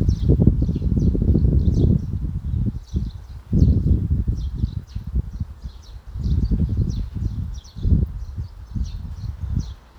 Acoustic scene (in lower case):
park